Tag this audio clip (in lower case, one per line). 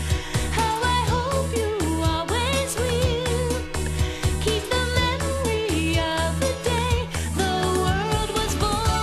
music
music for children